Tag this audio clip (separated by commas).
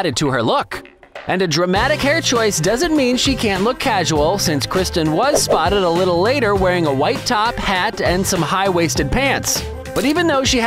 Music, Speech